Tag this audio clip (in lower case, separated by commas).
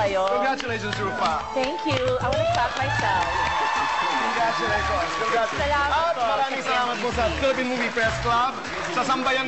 speech, music